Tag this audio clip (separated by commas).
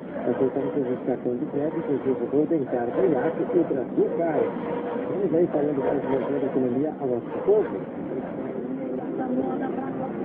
Truck, Vehicle, Speech